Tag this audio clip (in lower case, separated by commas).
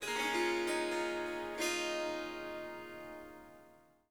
music, musical instrument, harp